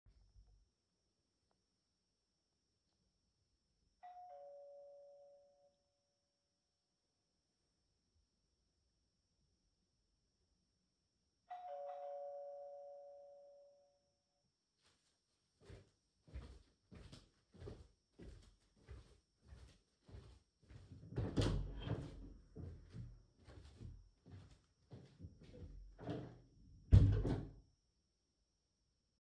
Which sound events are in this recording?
bell ringing, footsteps, door